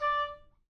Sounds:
Wind instrument, Musical instrument, Music

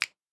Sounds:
Hands, Finger snapping

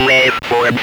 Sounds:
Human voice, Speech

